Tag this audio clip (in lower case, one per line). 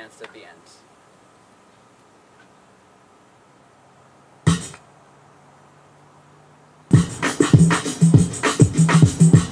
outside, urban or man-made
speech
music